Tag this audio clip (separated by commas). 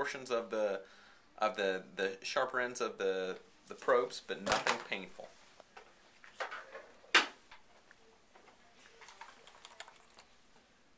Speech, inside a small room